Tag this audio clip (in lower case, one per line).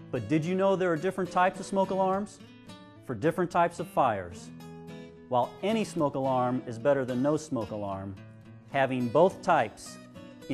speech
music